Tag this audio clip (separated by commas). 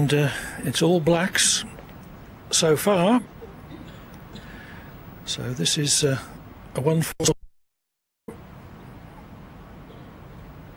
Speech